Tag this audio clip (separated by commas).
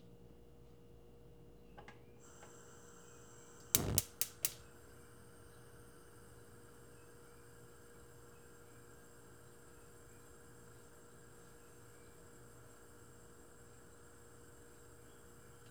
Fire